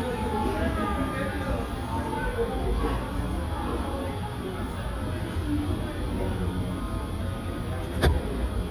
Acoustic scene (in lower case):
cafe